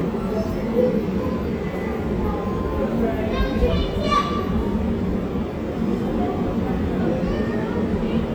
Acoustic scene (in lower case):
subway station